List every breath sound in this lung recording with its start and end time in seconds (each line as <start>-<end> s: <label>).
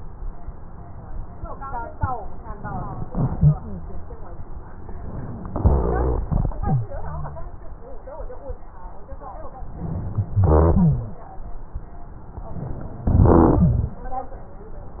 5.50-6.26 s: exhalation
5.52-6.28 s: rhonchi
9.66-10.42 s: inhalation
10.44-11.20 s: rhonchi
10.44-11.21 s: exhalation
12.37-13.07 s: inhalation
13.07-13.96 s: exhalation
13.07-13.96 s: rhonchi